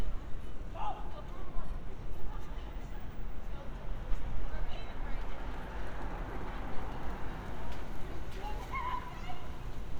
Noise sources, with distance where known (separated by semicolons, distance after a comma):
person or small group shouting, far